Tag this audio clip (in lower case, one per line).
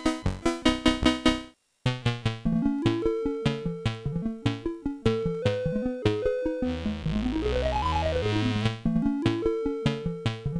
video game music
music